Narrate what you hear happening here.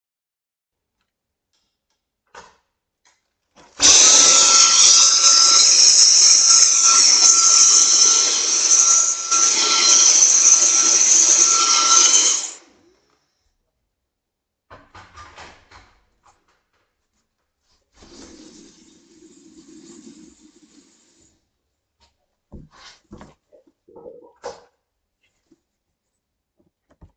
I switched on the light, turned the vacuum cleaner on. Then turned it off again, turned the water on and off and switched off the light.